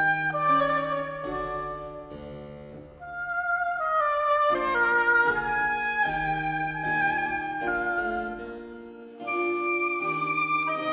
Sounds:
playing oboe

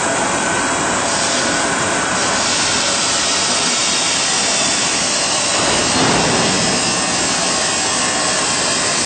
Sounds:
jet engine

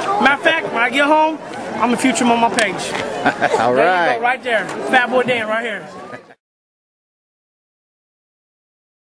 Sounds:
speech

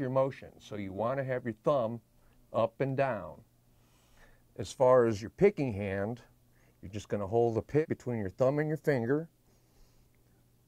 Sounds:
speech

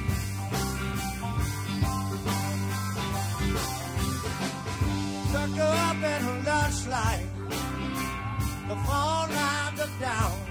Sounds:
music

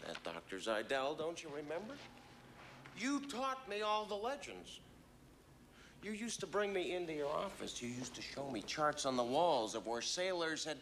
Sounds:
speech

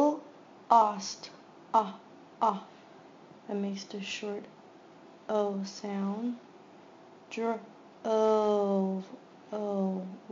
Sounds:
speech

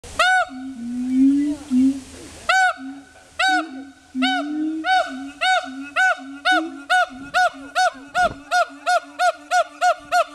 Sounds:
gibbon howling

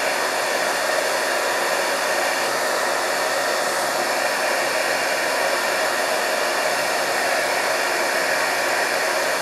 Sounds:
hair dryer

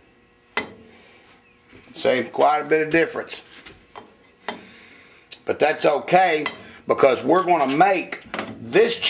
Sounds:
speech

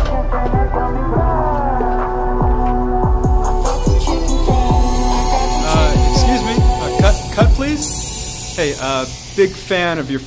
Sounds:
rapping

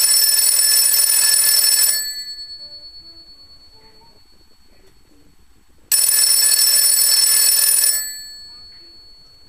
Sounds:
telephone
speech
music

